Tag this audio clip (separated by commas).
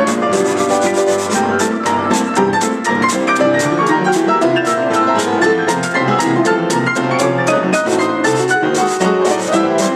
Piano, Keyboard (musical), Electric piano, playing piano